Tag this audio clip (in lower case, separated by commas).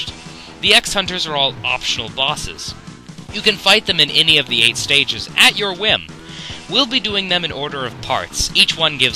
speech